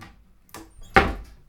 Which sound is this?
wooden cupboard closing